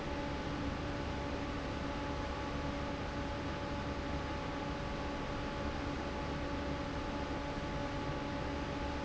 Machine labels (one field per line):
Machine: fan